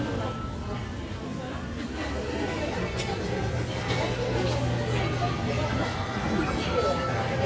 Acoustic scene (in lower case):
crowded indoor space